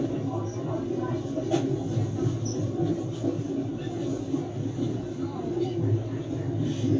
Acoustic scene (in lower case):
subway train